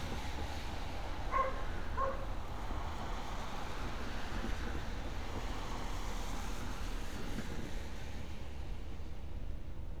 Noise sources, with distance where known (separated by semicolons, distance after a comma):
medium-sounding engine; dog barking or whining, near